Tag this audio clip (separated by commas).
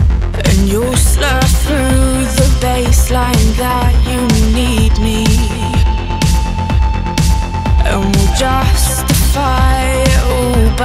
Music